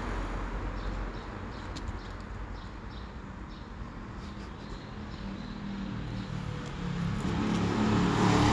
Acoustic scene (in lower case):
street